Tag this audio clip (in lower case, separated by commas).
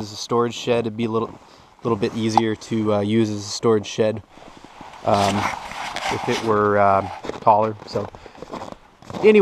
speech